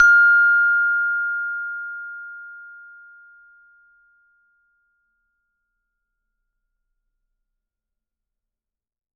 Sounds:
percussion
music
mallet percussion
musical instrument

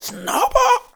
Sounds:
speech
human voice

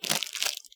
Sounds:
crumpling

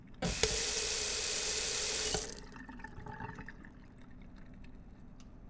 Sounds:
sink (filling or washing)
water tap
domestic sounds

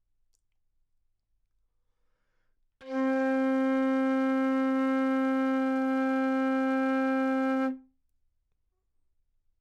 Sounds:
woodwind instrument
music
musical instrument

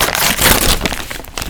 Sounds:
tearing

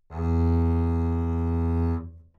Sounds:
bowed string instrument
musical instrument
music

